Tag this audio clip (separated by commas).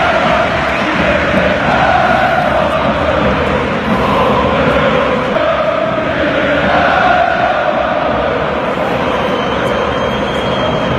Music, Male singing